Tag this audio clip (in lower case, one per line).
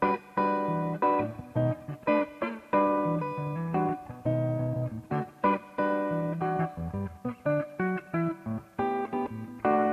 musical instrument
guitar
music
plucked string instrument